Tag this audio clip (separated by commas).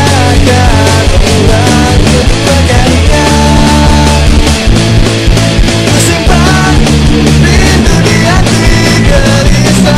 Punk rock, Music